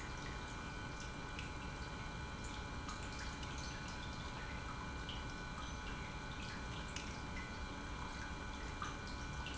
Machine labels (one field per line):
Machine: pump